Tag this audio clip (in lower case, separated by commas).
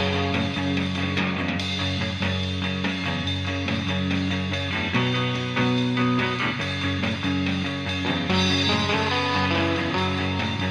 music